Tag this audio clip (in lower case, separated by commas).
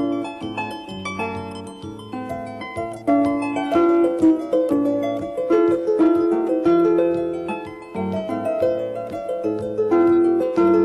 music